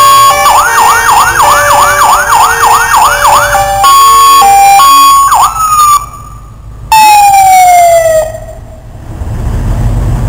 A loud siren blares for a few seconds then fades out